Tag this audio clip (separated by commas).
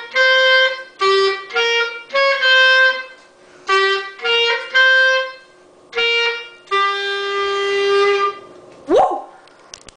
Music